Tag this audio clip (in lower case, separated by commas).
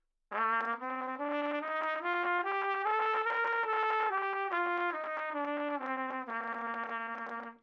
trumpet, musical instrument, music, brass instrument